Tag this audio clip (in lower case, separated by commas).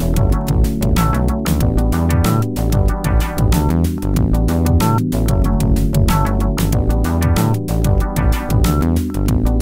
music